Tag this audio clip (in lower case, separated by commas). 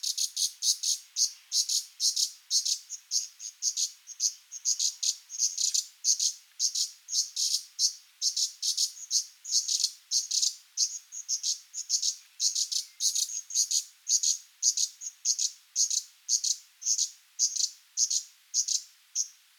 animal, bird, bird song, wild animals